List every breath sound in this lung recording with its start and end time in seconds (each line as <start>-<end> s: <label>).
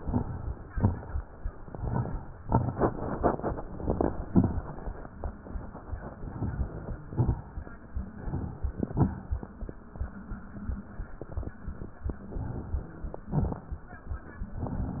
0.00-0.68 s: inhalation
0.00-0.68 s: crackles
0.71-1.39 s: exhalation
0.71-1.39 s: crackles
1.55-2.38 s: inhalation
1.55-2.38 s: crackles
2.39-3.23 s: exhalation
2.39-3.23 s: crackles
3.62-4.26 s: inhalation
3.62-4.26 s: crackles
4.28-4.92 s: exhalation
4.28-4.92 s: crackles
6.31-7.05 s: inhalation
6.31-7.05 s: crackles
7.06-7.80 s: exhalation
7.06-7.80 s: crackles
8.04-8.78 s: inhalation
8.04-8.78 s: crackles
8.79-9.53 s: exhalation
8.79-9.53 s: crackles
12.38-13.25 s: inhalation
12.38-13.25 s: crackles
13.26-14.00 s: exhalation
13.26-14.00 s: crackles
14.63-15.00 s: inhalation
14.63-15.00 s: crackles